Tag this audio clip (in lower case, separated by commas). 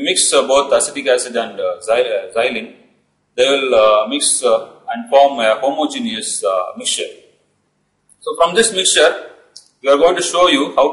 speech